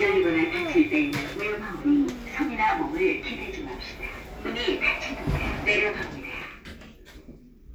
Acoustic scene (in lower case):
elevator